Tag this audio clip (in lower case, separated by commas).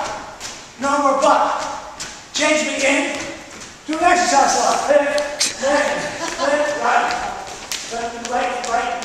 run, speech